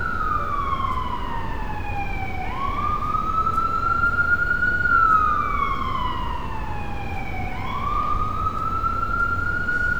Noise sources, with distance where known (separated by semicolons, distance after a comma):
siren, near